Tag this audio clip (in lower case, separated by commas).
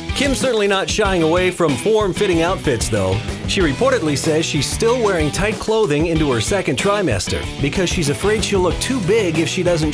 music, speech